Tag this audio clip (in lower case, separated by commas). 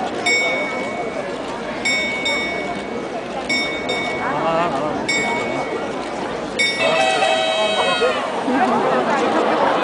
tick, speech